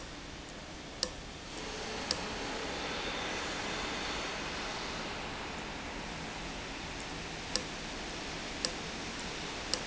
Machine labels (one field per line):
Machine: valve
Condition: abnormal